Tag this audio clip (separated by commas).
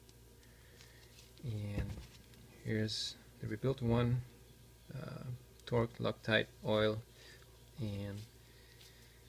Speech